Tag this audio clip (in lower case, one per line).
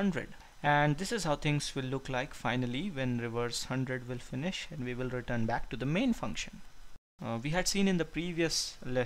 reversing beeps